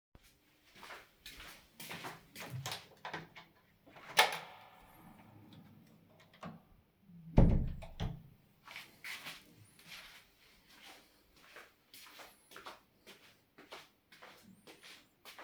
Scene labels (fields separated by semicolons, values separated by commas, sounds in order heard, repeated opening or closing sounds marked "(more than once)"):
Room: hallway, living room; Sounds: footsteps, door (more than once)